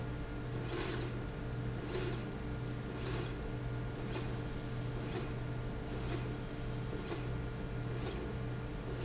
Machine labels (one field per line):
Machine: slide rail